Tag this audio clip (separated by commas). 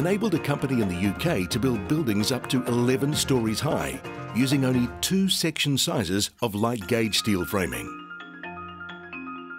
Music, Speech, xylophone